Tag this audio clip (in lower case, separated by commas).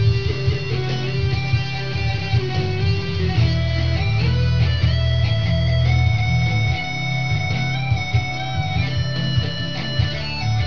plucked string instrument, guitar, musical instrument, music